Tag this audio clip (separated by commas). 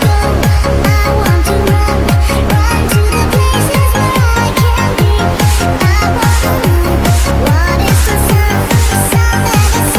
Music